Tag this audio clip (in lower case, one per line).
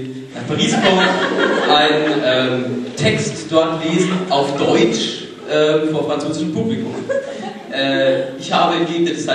speech